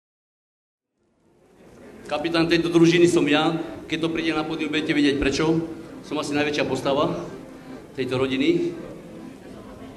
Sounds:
music, speech, man speaking

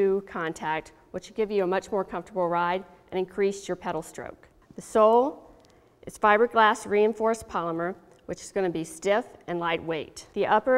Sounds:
speech

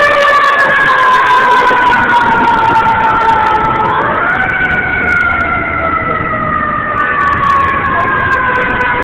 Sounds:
vehicle, speech

